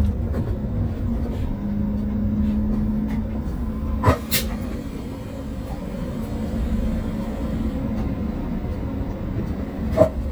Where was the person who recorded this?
on a bus